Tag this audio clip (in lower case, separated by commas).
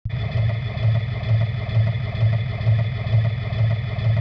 mechanisms